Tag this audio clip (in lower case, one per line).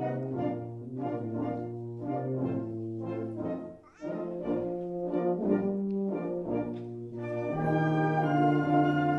music
trombone
musical instrument